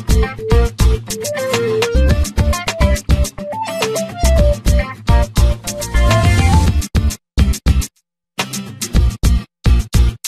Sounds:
Music

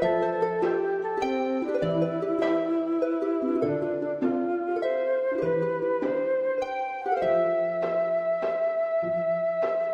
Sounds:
Music

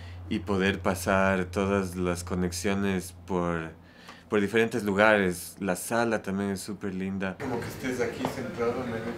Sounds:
Speech

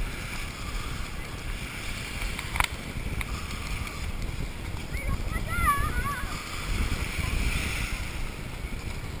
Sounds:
Speech

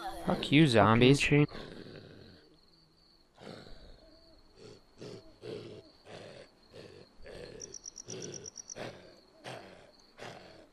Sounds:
Speech

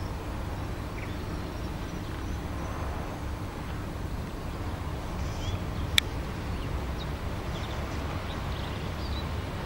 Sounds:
magpie calling

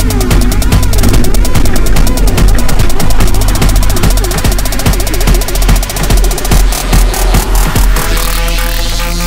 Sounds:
Music

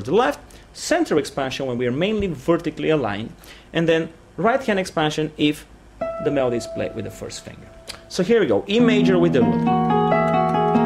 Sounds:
Music, Harmonic, Speech

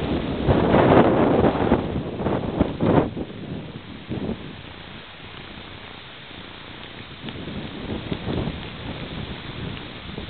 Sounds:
Wind noise (microphone), Rustling leaves

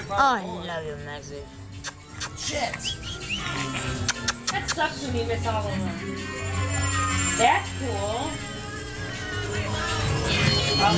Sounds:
Music, Speech

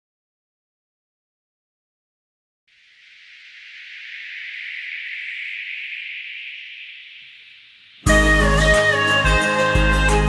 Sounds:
Music

